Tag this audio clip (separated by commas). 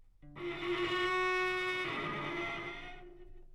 Music, Musical instrument, Bowed string instrument